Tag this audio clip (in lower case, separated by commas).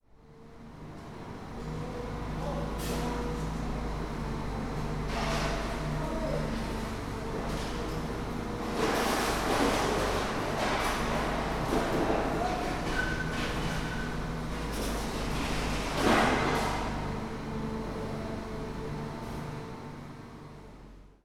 human group actions, hiss, mechanisms, chatter, rattle, engine